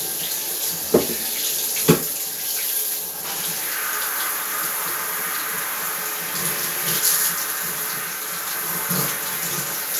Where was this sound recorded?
in a restroom